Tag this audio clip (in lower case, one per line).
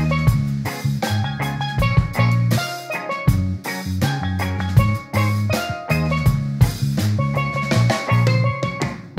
playing steelpan